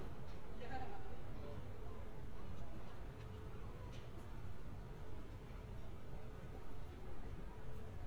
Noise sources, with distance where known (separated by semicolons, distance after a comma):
person or small group talking, far